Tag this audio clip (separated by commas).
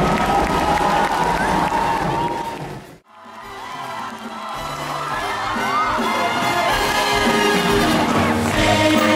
Rain on surface, Rain